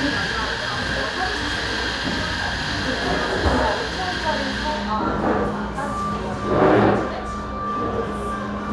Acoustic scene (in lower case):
cafe